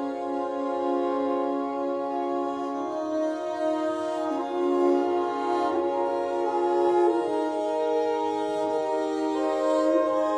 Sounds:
music
keyboard (musical)

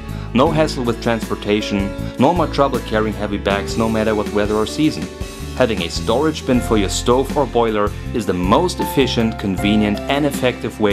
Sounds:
music
speech

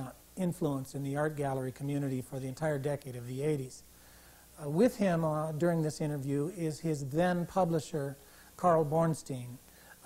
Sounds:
speech

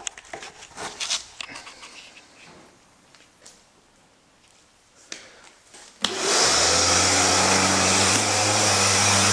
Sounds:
power tool
outside, urban or man-made

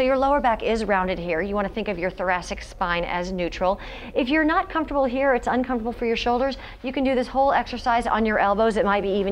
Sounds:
speech

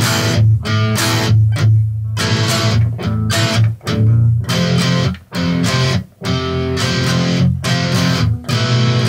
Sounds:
music

